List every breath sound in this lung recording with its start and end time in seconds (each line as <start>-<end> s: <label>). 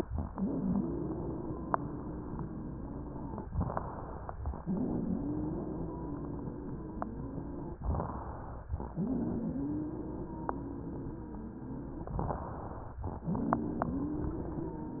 0.12-3.42 s: exhalation
0.12-3.42 s: wheeze
3.49-4.36 s: inhalation
3.49-4.36 s: crackles
4.57-7.78 s: exhalation
4.57-7.78 s: wheeze
7.86-8.72 s: inhalation
7.86-8.72 s: crackles
8.92-12.12 s: exhalation
8.92-12.12 s: wheeze
12.18-13.04 s: inhalation
12.18-13.04 s: crackles
13.26-15.00 s: exhalation
13.26-15.00 s: wheeze